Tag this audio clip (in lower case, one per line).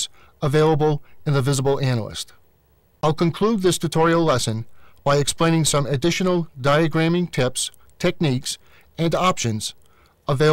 speech